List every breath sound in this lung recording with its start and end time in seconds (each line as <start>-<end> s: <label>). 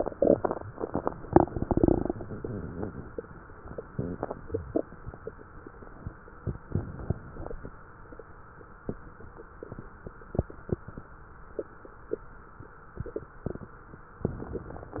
2.11-3.20 s: wheeze